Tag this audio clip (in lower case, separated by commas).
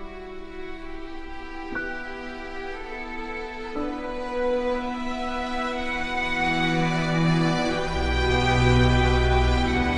music